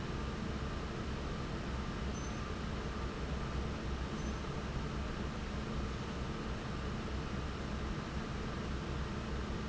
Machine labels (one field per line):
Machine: fan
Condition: normal